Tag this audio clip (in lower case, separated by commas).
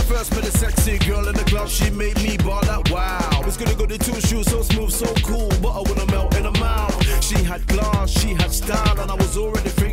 music